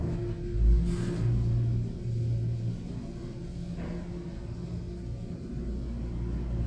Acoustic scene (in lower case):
elevator